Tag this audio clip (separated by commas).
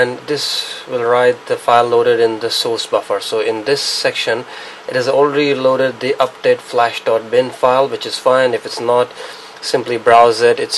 Speech